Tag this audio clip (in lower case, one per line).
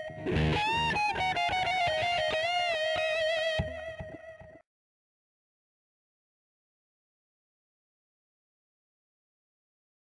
plucked string instrument
guitar
musical instrument
strum
music
electric guitar